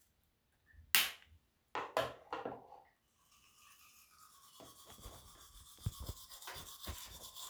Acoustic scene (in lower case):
restroom